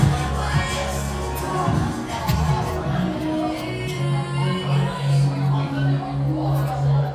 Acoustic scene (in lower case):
cafe